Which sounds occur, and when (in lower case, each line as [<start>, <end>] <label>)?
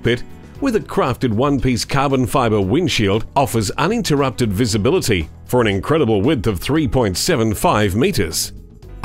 [0.00, 0.25] male speech
[0.00, 9.04] music
[0.60, 3.22] male speech
[3.36, 5.26] male speech
[5.47, 8.53] male speech